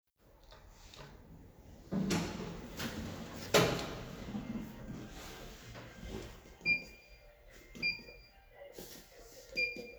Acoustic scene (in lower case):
elevator